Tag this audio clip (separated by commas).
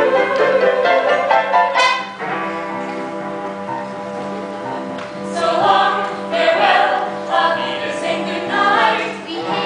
Music